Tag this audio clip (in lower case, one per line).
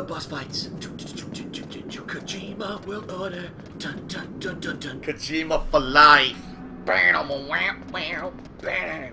music
speech